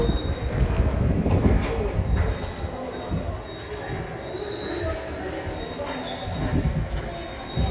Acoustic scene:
subway station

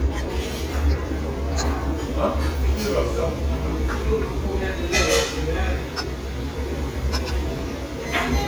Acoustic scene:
restaurant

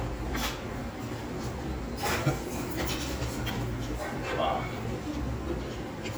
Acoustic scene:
restaurant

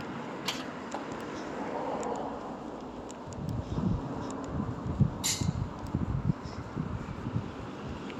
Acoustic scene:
street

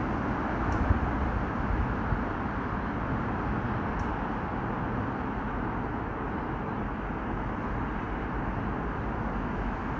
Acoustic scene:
street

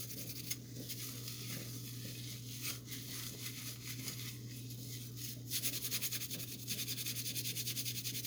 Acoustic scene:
kitchen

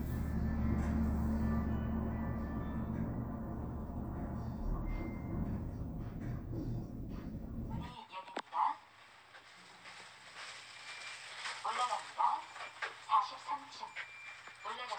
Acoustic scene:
elevator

